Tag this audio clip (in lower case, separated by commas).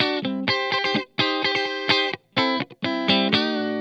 guitar, musical instrument, plucked string instrument, music, electric guitar